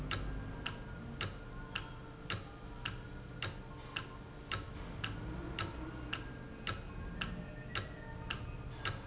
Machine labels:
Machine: valve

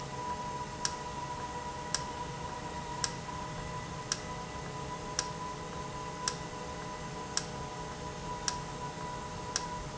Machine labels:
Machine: valve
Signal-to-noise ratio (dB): -6 dB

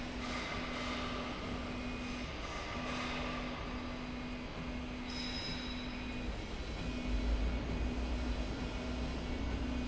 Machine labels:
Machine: slide rail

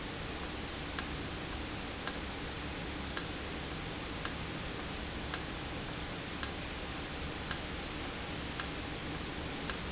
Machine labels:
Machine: valve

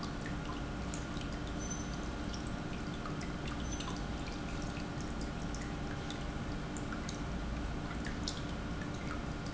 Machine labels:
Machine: pump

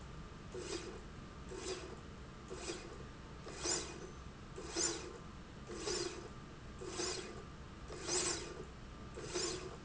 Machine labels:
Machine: slide rail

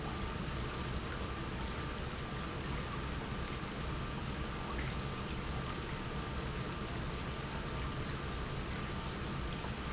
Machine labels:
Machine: pump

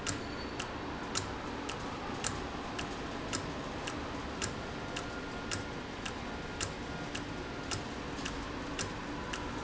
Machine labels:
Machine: valve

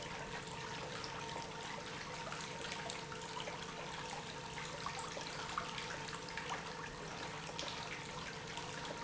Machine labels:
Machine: pump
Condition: normal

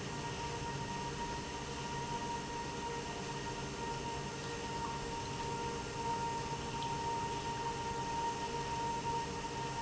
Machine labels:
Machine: pump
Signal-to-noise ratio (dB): -6 dB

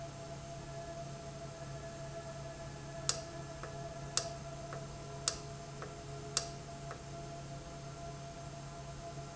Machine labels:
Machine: valve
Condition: normal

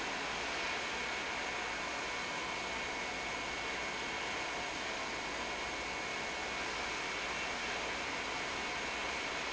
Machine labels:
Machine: pump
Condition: normal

